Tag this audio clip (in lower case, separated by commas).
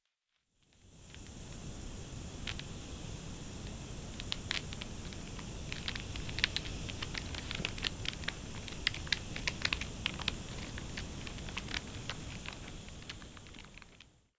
fire